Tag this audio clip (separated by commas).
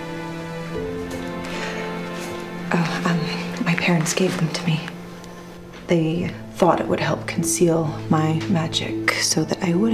Music, Speech